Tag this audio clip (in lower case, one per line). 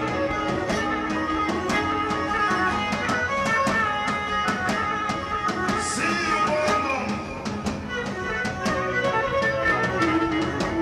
speech
music